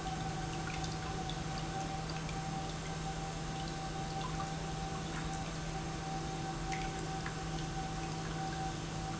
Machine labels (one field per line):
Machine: pump